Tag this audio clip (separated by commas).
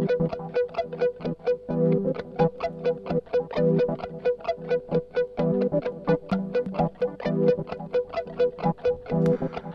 Electronic music, Music, Techno